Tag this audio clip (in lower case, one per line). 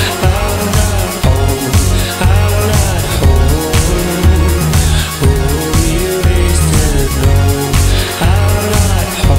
music